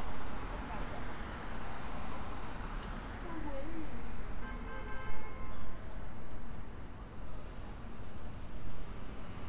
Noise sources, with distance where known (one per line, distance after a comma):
car horn, far
person or small group talking, far